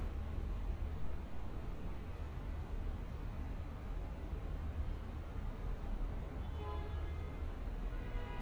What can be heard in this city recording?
background noise